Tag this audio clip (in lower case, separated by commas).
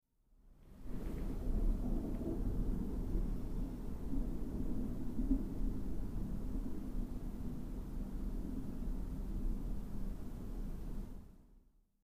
thunder, thunderstorm